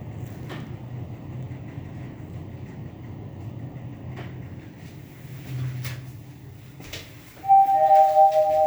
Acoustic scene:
elevator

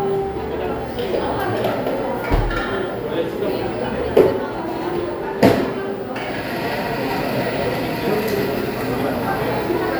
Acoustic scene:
cafe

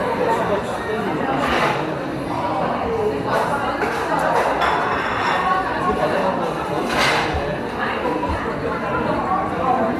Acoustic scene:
cafe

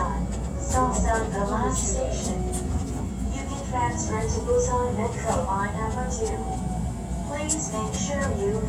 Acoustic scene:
subway train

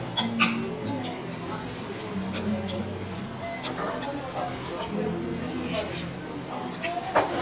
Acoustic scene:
restaurant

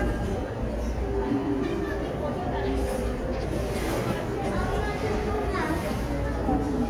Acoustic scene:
crowded indoor space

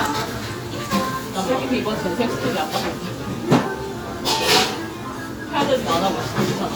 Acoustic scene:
restaurant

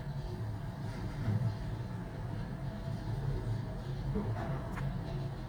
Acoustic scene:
elevator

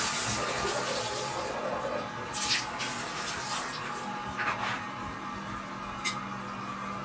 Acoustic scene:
restroom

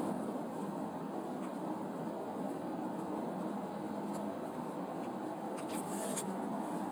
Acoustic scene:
car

